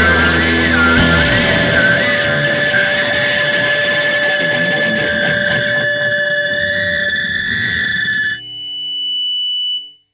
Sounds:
music

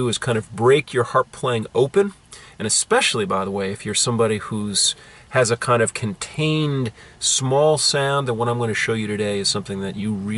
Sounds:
speech

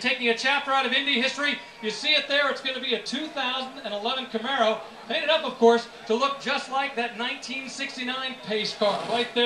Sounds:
speech

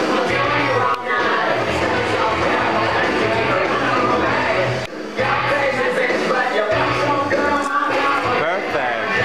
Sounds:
roll, speech, music, rock and roll

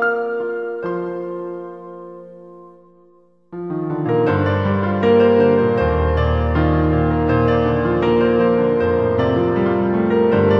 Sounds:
piano, music

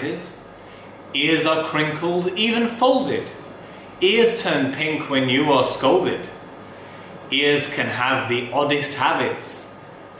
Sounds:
narration, man speaking, speech

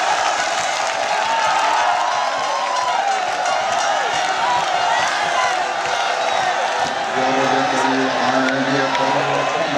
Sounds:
speech

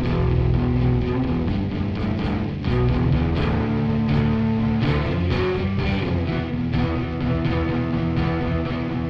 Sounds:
music, electric guitar

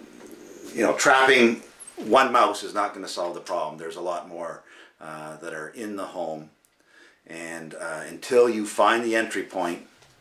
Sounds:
speech

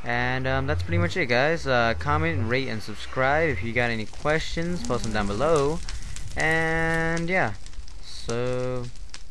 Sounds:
speech

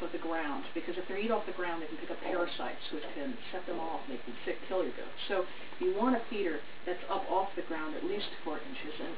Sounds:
speech

